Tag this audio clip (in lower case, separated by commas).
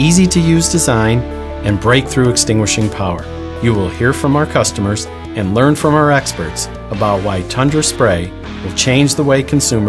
music, speech